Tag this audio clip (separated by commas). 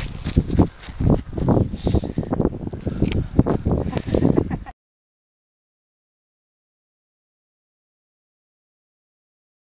outside, rural or natural